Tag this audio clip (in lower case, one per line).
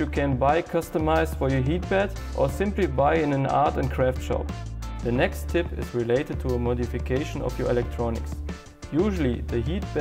music
speech